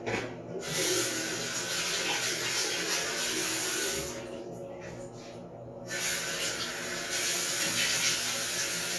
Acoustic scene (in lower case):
restroom